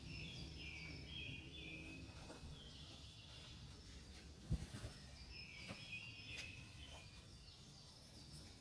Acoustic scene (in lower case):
park